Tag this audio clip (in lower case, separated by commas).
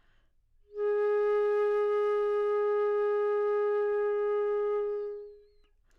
musical instrument, music, wind instrument